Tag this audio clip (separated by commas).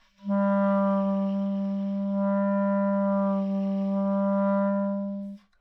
Music, woodwind instrument, Musical instrument